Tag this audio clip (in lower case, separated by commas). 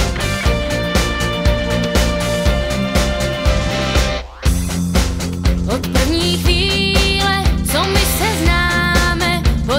music